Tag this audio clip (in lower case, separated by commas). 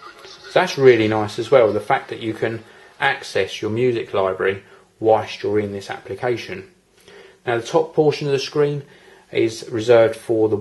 speech